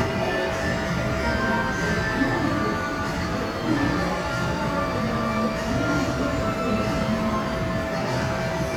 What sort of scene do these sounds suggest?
cafe